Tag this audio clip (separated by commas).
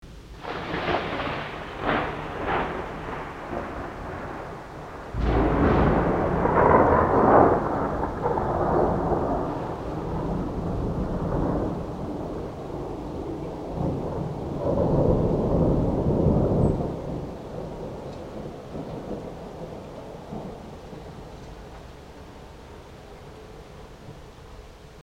Rain, Thunderstorm, Thunder, Water